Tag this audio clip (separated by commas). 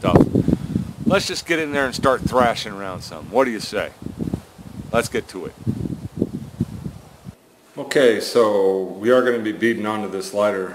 outside, rural or natural, Speech